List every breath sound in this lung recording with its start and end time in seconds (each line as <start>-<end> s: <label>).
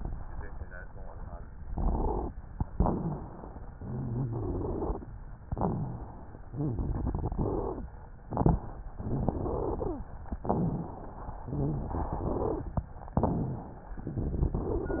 1.68-2.32 s: crackles
1.70-2.32 s: inhalation
2.70-3.68 s: exhalation
2.78-3.42 s: rhonchi
3.72-5.02 s: inhalation
3.76-5.04 s: rhonchi
5.48-6.14 s: crackles
5.50-6.40 s: exhalation
6.52-7.80 s: crackles
6.54-7.80 s: inhalation
8.28-8.82 s: exhalation
8.28-8.84 s: crackles
8.96-9.94 s: inhalation
10.43-11.13 s: rhonchi
10.48-11.46 s: exhalation
11.48-12.82 s: inhalation
11.49-12.63 s: rhonchi
13.17-13.79 s: crackles
13.22-13.92 s: exhalation
14.02-15.00 s: inhalation
14.09-15.00 s: rhonchi